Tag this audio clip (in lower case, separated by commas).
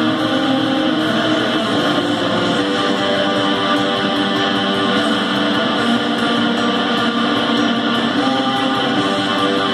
guitar, plucked string instrument, musical instrument, music, strum, bass guitar